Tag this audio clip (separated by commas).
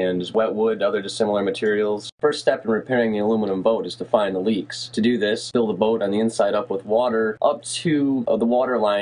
Speech